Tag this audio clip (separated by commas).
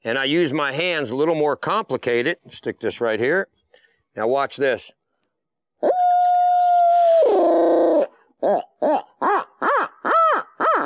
Speech